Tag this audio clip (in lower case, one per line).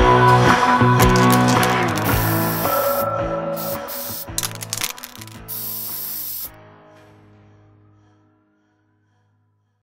spray
music